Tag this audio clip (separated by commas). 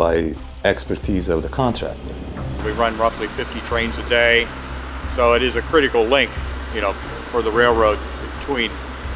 Speech, Music